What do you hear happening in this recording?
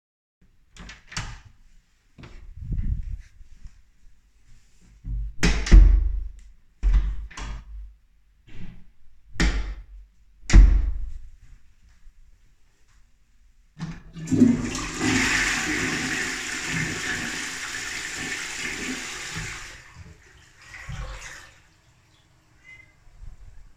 i open and close several time the door of the bathroom than i walk to the toilet and flush it